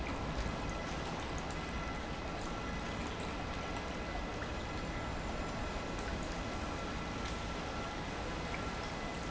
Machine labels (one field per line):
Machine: pump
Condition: normal